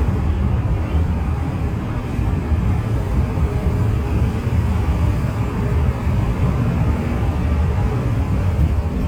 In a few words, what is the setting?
bus